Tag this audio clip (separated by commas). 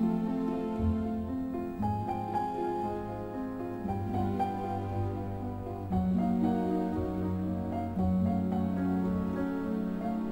Music, Tender music